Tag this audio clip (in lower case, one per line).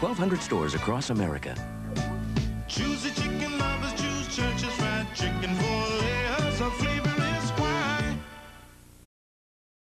speech
music